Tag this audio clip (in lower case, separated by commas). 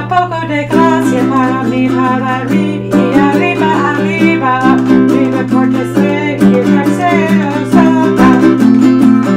playing ukulele